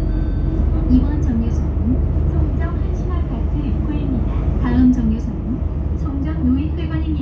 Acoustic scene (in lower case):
bus